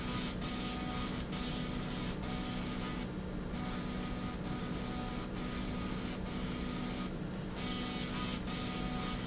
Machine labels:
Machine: slide rail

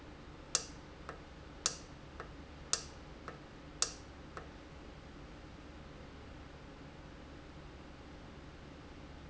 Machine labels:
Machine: valve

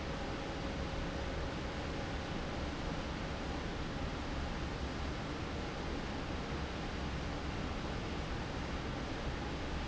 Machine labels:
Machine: fan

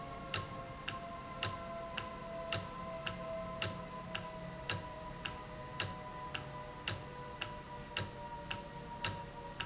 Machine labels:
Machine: valve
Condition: normal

